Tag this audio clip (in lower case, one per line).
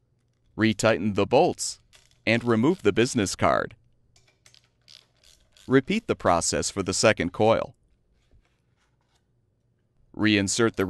inside a small room
speech